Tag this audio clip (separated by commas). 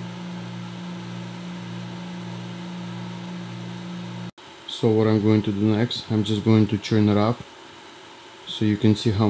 Speech, White noise